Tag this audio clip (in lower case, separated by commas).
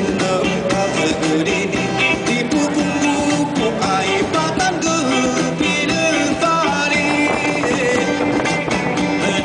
music